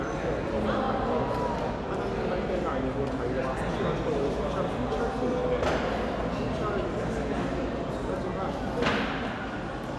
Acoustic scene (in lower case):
crowded indoor space